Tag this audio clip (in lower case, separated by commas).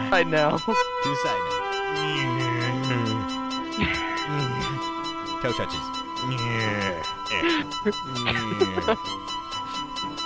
music, speech